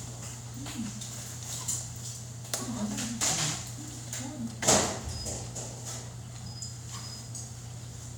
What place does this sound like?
restaurant